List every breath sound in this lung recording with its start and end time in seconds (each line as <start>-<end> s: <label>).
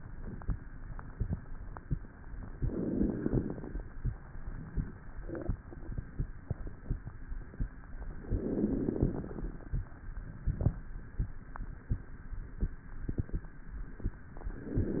2.52-3.85 s: inhalation
8.26-9.71 s: inhalation
14.48-15.00 s: inhalation